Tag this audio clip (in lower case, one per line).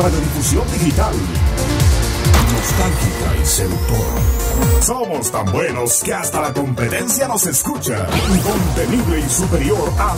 music
speech